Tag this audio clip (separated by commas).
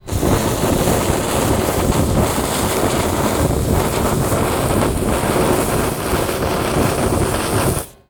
Fire